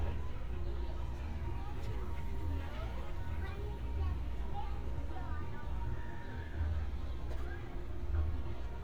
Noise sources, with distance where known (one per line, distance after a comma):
music from an unclear source
person or small group talking, near